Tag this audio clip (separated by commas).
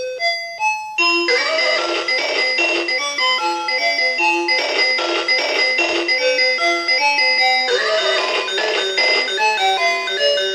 Keyboard (musical), Piano, Musical instrument, Music